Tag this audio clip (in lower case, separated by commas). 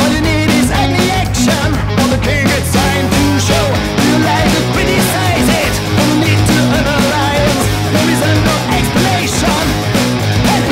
music, exciting music